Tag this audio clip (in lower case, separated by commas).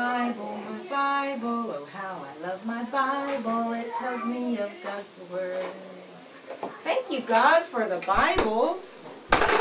child speech, speech